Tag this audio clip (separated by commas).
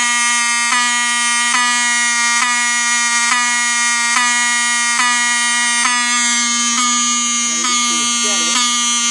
Fire alarm